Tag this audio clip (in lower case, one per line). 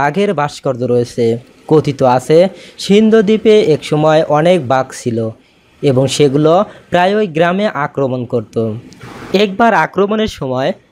striking pool